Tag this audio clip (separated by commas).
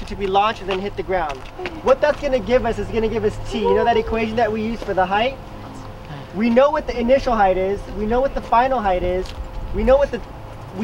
Speech